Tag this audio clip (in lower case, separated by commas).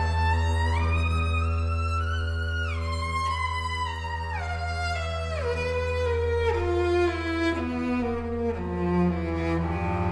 musical instrument, music, cello